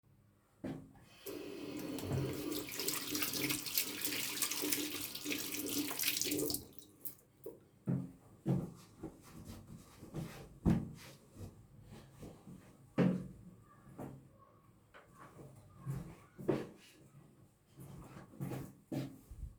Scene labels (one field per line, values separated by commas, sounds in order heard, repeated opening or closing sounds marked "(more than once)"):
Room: dorm room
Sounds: footsteps, running water